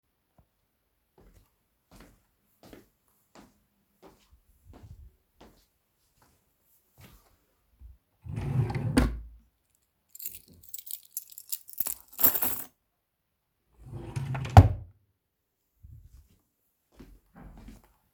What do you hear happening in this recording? I walked across the room toward the wardrobe. While moving, I opened a drawer to put my keychain inside, then closed it firmly. My footsteps continued throughout the recording as I moved back.